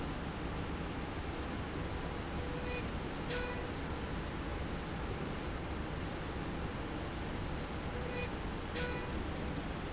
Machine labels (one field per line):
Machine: slide rail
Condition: normal